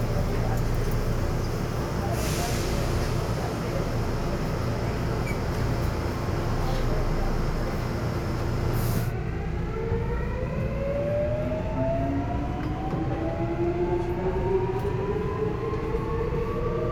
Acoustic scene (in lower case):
subway train